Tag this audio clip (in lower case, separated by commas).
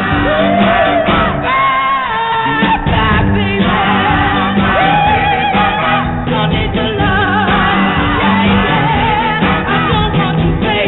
inside a small room, music